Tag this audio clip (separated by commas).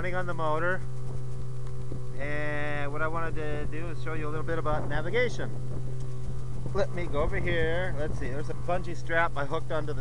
Speech